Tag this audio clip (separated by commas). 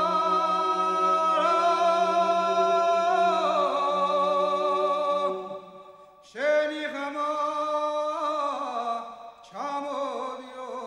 Choir, Music